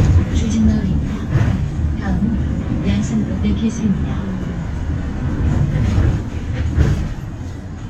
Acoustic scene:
bus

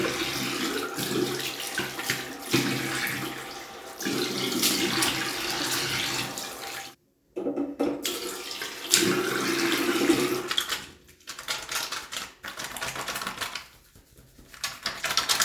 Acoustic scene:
restroom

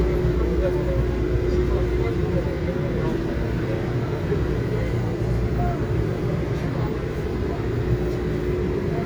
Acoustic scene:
subway train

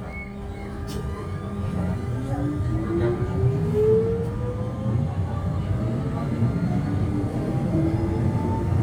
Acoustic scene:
subway train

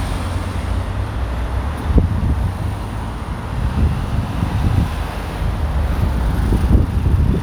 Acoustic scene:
street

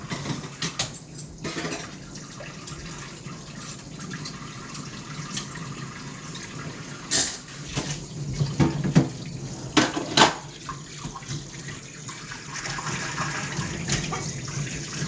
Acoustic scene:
kitchen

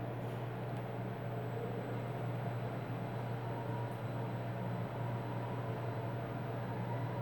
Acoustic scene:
elevator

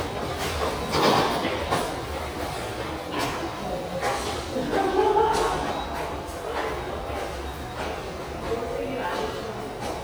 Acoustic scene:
subway station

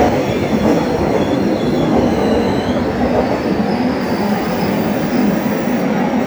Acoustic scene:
subway station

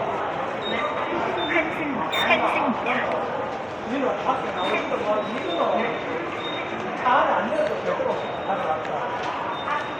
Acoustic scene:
subway station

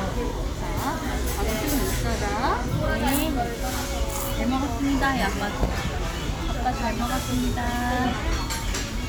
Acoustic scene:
restaurant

